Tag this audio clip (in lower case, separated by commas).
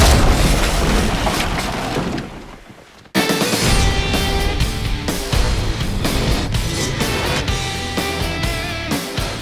music